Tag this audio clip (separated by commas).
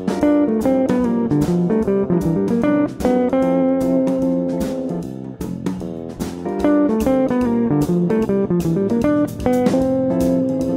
Musical instrument, Plucked string instrument, Jazz, Guitar, Music, Electric guitar, Strum